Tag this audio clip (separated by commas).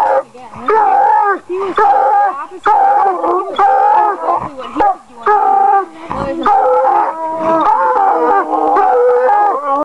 Speech